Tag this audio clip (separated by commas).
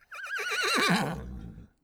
livestock, Animal